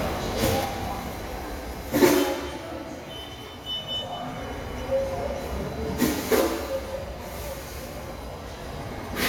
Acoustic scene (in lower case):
subway station